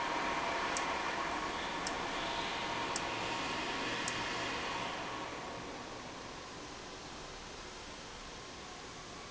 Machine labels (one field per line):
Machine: valve